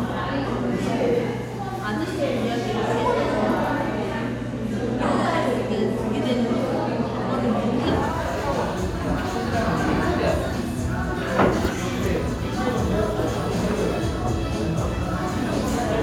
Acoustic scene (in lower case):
crowded indoor space